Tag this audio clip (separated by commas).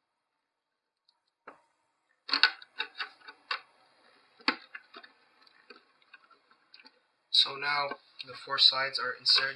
Speech